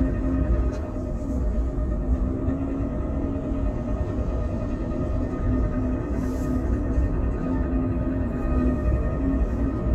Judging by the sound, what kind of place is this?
bus